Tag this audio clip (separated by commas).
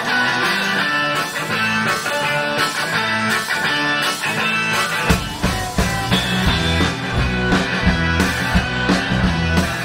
Music